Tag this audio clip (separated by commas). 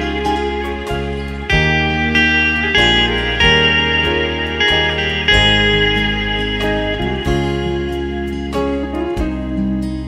Bass guitar, Guitar, Musical instrument, Music, Plucked string instrument